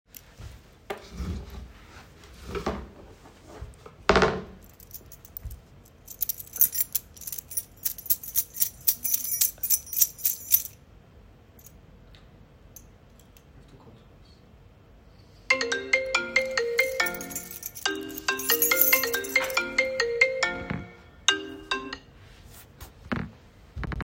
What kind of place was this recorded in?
office